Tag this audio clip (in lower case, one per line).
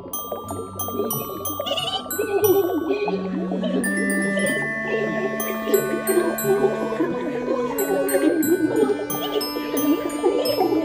music